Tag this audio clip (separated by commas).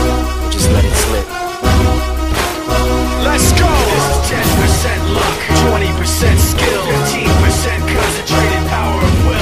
Speech, Music